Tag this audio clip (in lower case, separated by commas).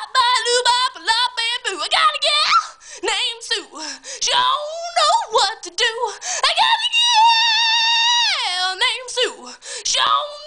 female singing